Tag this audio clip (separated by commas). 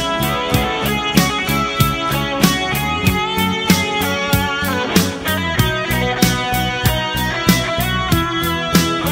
Music